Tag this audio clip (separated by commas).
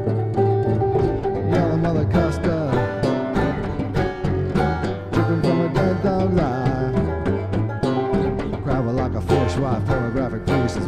playing banjo, Banjo, Singing, Folk music